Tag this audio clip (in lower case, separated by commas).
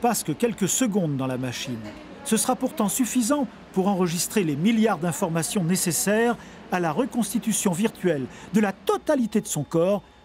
inside a small room, speech